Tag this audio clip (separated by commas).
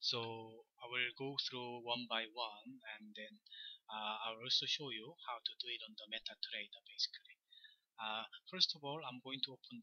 Speech